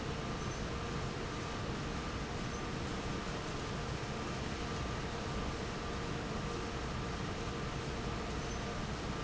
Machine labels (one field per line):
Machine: fan